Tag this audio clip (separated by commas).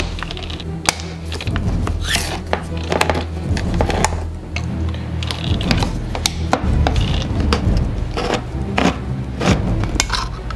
people eating crisps